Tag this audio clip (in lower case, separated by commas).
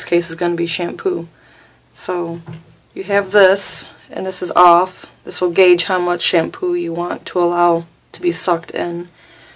speech